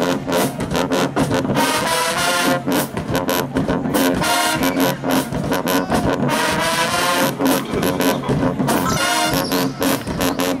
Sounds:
Music, Speech

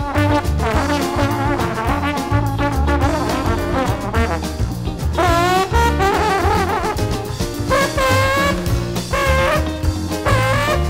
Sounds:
Music, Trombone

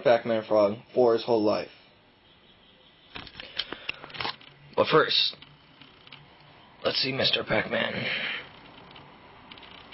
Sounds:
Speech

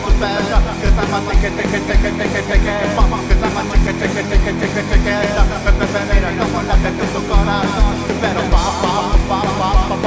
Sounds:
Music, Pop music

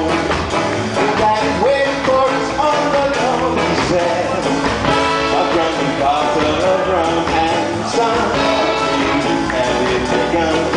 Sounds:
Music

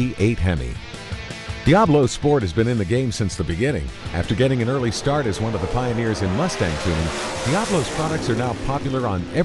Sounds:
Music, Speech

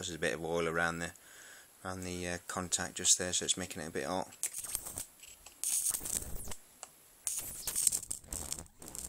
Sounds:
inside a small room, Speech

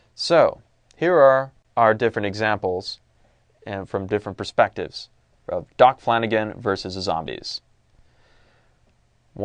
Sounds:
Speech, monologue

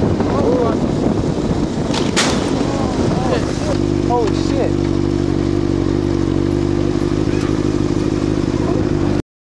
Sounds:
Speech, Vehicle

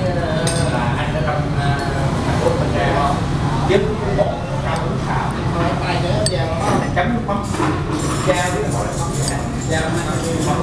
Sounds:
Speech

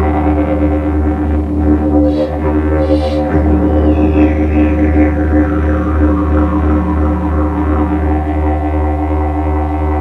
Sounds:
Music, Didgeridoo

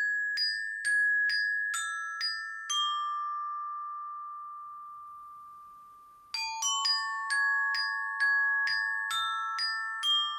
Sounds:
playing glockenspiel

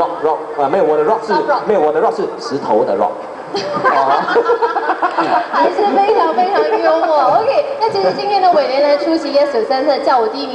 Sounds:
Speech, man speaking, Laughter

